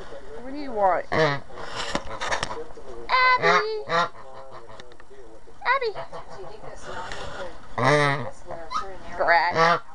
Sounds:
Fowl, Goose, Honk

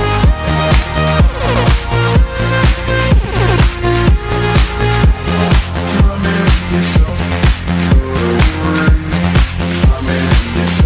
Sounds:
Music

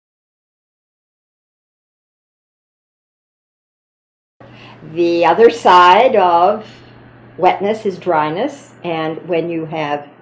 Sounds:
Speech

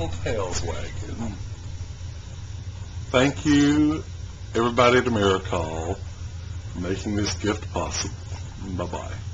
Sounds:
Speech

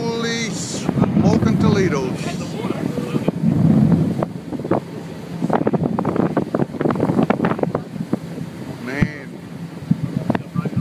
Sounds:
Wind noise (microphone), Wind

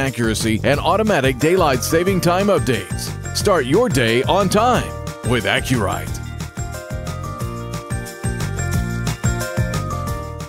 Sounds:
Speech, Music

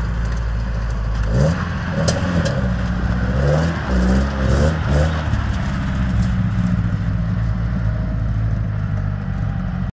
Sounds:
Car, Vehicle

